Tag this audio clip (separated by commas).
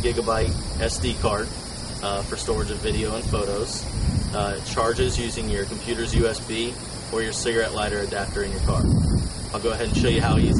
Speech